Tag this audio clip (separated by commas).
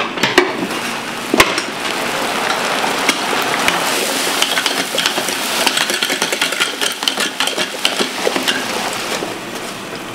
inside a large room or hall